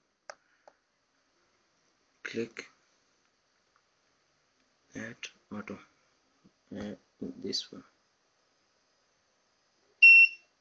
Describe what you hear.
An adult male speaks, and an electronic beep occurs